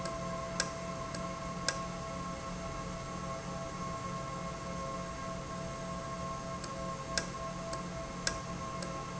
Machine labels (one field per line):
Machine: valve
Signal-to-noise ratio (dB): -6 dB